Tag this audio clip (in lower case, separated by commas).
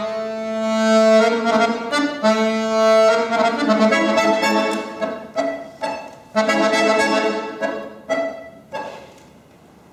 musical instrument, music